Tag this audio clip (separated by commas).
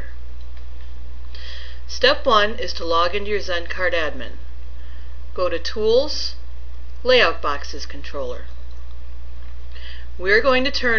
Speech, Narration